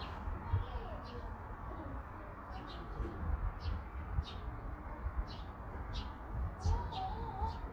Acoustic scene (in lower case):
park